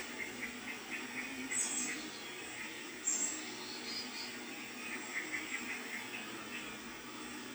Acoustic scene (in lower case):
park